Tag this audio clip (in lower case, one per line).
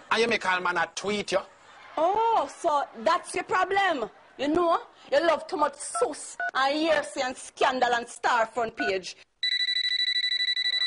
speech